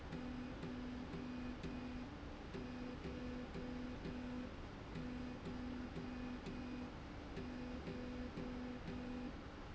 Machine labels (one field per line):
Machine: slide rail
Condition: normal